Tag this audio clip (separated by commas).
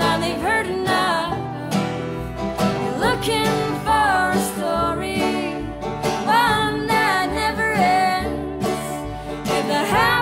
Bluegrass